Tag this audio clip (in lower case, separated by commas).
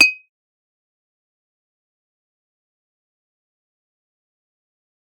glass, chink